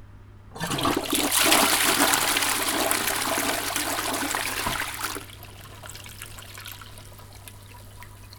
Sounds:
Toilet flush, home sounds

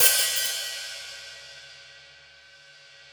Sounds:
Cymbal, Musical instrument, Music, Hi-hat, Percussion

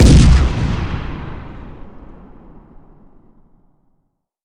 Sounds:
Explosion, Boom

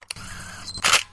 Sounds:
Mechanisms, Camera

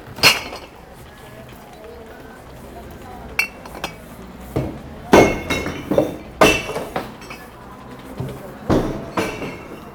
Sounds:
Glass

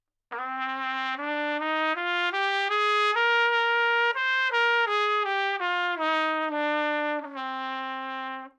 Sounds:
Music, Musical instrument, Brass instrument, Trumpet

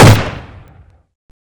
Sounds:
Gunshot, Explosion

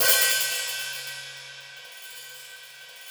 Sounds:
Percussion, Music, Hi-hat, Musical instrument, Cymbal

